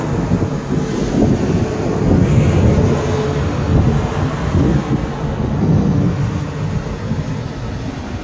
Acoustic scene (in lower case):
street